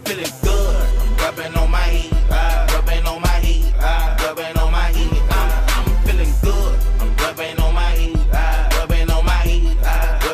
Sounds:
music

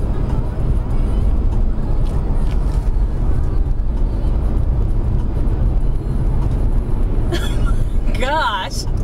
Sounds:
speech

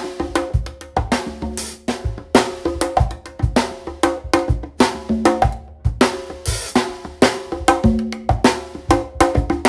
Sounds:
playing congas

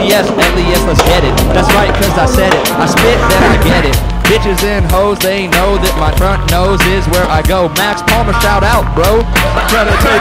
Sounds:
music
speech

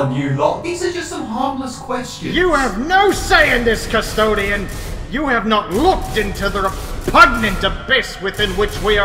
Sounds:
speech
speech synthesizer
music

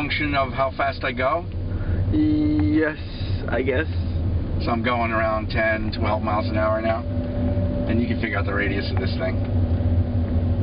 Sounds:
speech
car
vehicle

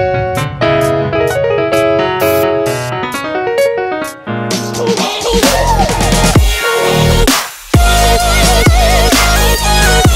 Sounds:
playing synthesizer

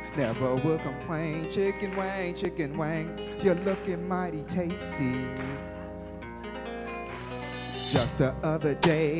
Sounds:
music

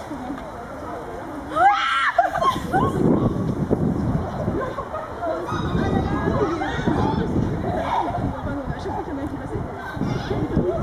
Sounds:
speech

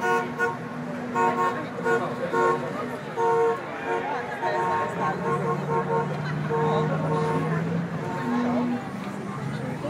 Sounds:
car
vehicle
speech

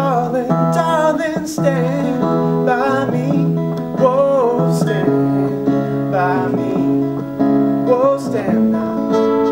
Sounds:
strum
music
acoustic guitar
guitar
plucked string instrument
musical instrument

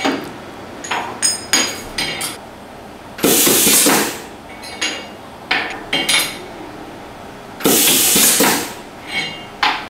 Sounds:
clink

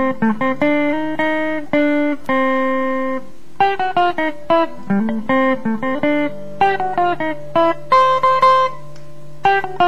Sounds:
music
guitar
strum
musical instrument
plucked string instrument

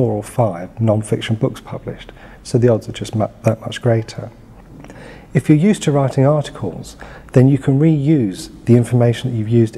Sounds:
speech

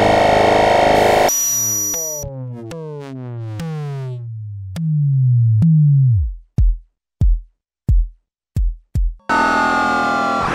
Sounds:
synthesizer
music
musical instrument

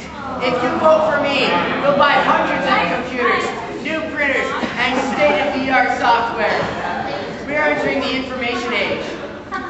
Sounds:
speech

